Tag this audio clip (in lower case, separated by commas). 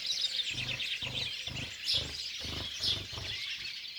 bird, wild animals, animal